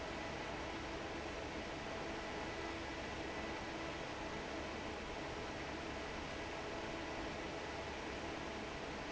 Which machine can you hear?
fan